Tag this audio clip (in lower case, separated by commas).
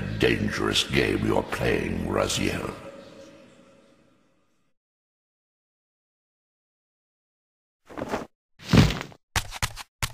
speech